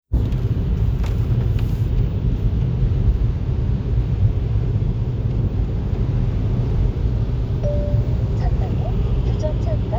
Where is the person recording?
in a car